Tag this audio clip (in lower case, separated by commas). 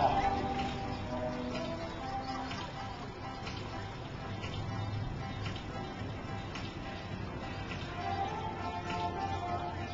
music, speech